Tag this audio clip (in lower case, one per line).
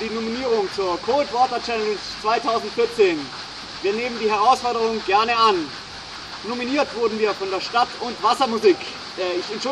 speech